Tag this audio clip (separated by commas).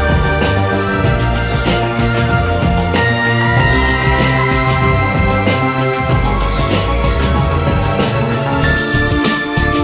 Music, Background music